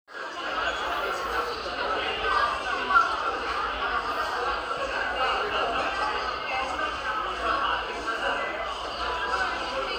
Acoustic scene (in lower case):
cafe